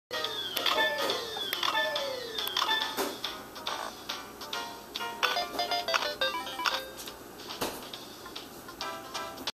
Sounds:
soundtrack music
music

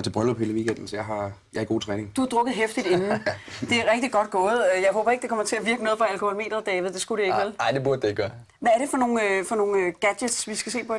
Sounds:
speech

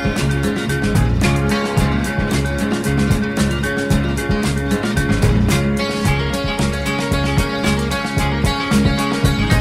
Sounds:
music

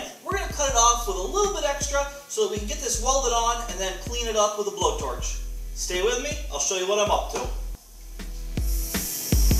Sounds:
music
inside a large room or hall
speech

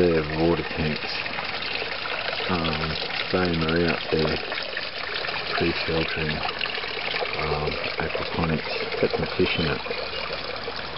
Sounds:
stream
speech

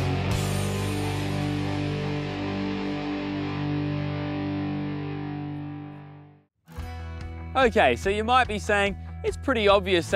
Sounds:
music
speech

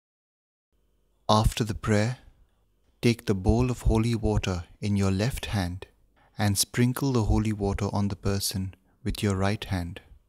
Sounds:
speech

